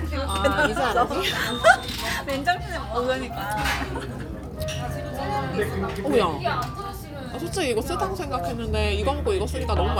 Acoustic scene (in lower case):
crowded indoor space